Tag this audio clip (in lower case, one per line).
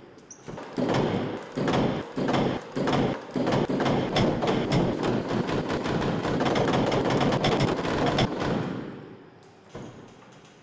door slamming